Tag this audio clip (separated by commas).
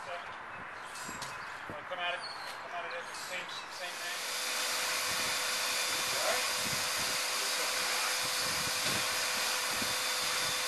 Speech, Steam